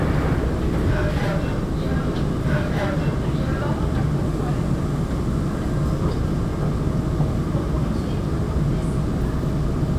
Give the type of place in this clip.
subway train